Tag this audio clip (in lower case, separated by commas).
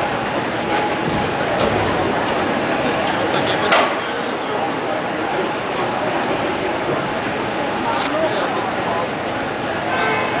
vehicle, speech